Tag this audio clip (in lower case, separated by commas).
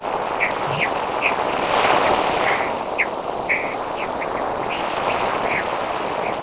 ocean, animal, wild animals, water, bird